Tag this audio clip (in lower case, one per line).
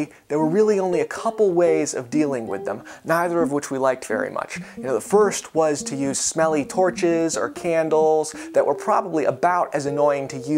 music
speech